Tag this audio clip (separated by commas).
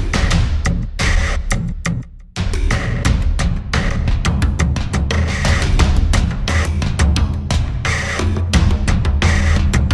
Music